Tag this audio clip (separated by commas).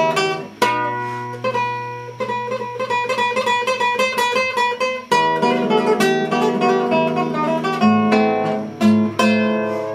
Guitar, Strum, Acoustic guitar, Plucked string instrument, Music, Musical instrument